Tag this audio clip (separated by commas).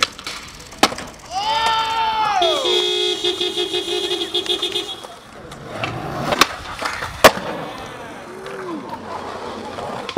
outside, urban or man-made